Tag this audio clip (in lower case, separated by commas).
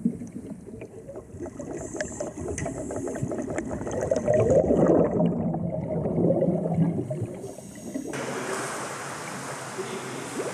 scuba diving